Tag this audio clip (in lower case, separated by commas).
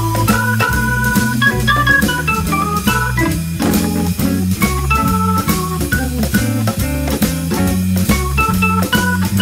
organ, electronic organ